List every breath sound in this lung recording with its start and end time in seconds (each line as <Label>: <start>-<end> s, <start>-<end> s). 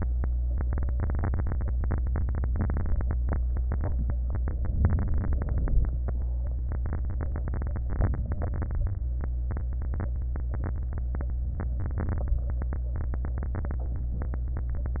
Inhalation: 4.82-5.40 s, 7.88-8.30 s
Exhalation: 5.42-6.00 s, 8.29-8.77 s